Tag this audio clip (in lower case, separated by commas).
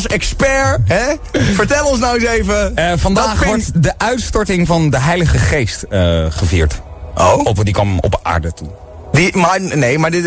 speech, music, radio